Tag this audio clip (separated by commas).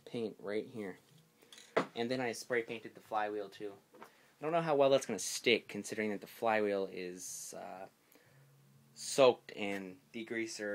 Speech